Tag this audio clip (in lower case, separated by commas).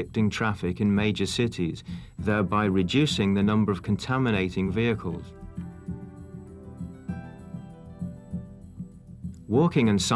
music, speech